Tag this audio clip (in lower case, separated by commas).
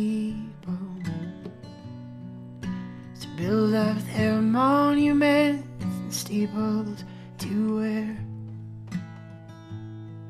music